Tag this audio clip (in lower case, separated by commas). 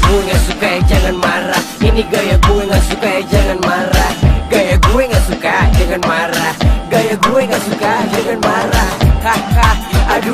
afrobeat